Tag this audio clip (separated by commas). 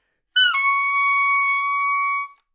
Music, Musical instrument, Wind instrument